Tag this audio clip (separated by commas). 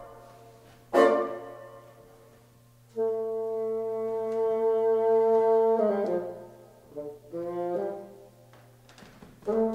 playing bassoon